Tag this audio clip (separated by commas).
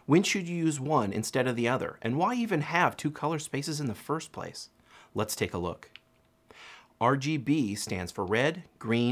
Speech